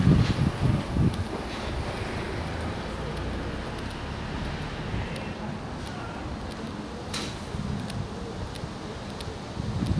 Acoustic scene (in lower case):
residential area